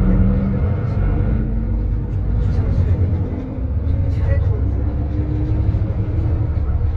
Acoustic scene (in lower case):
bus